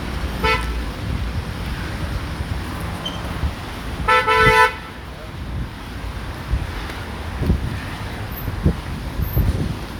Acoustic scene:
residential area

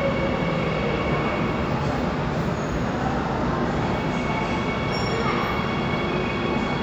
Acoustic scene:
subway station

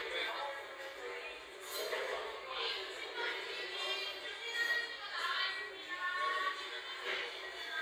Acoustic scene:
crowded indoor space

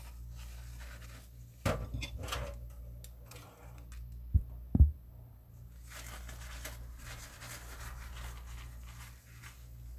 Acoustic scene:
kitchen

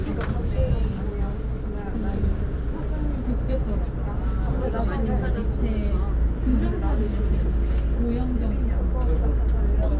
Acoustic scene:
bus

